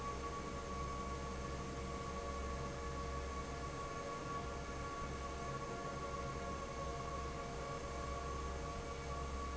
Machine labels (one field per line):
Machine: fan